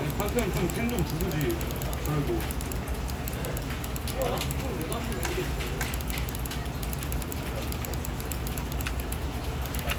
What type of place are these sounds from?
crowded indoor space